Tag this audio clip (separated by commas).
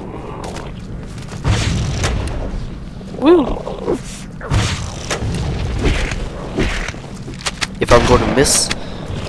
Speech